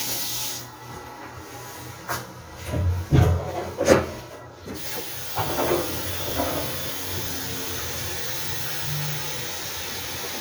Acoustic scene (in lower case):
restroom